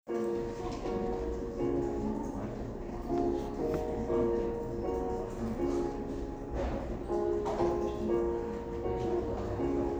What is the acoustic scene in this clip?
cafe